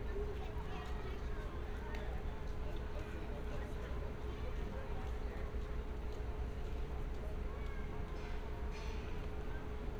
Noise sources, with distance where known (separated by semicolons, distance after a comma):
person or small group talking